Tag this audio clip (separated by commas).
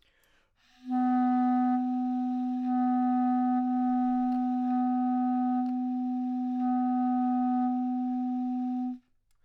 Musical instrument, Wind instrument, Music